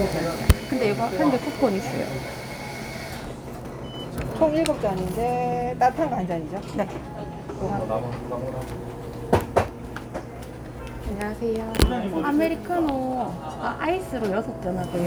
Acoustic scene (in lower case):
cafe